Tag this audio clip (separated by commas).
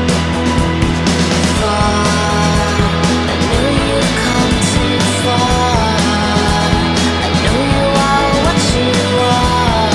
Music